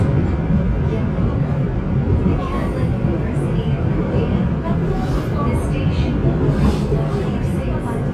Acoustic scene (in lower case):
subway train